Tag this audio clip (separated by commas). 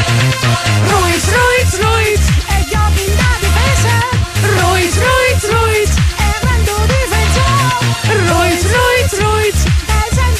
Music